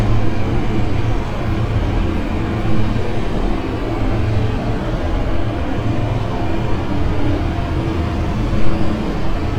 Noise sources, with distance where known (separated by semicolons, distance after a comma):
large-sounding engine, near